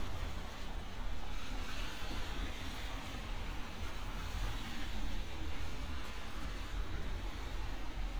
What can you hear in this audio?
background noise